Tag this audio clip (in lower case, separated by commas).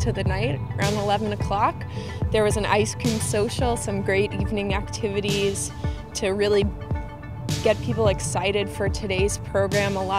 speech, music